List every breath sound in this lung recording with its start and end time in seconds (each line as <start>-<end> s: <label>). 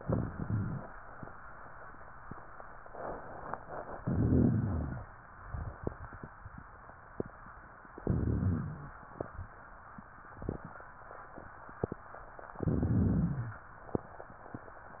4.04-5.06 s: inhalation
4.04-5.06 s: rhonchi
8.04-8.95 s: inhalation
8.04-8.95 s: rhonchi
12.65-13.61 s: inhalation
12.65-13.61 s: rhonchi